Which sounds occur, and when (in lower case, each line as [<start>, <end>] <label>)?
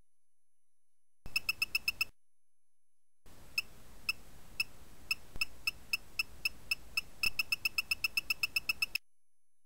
[1.19, 2.04] background noise
[1.19, 2.04] beep
[3.21, 8.95] background noise
[3.48, 3.59] beep
[4.01, 4.15] beep
[4.51, 4.65] beep
[5.01, 5.11] beep
[5.30, 5.42] beep
[5.58, 5.70] beep
[5.84, 5.98] beep
[6.13, 6.24] beep
[6.38, 6.50] beep
[6.65, 6.75] beep
[6.88, 7.02] beep
[7.16, 8.93] beep